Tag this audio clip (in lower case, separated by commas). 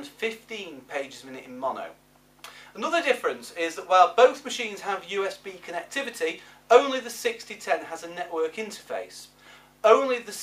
speech